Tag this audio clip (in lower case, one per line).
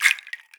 rattle (instrument)
music
musical instrument
percussion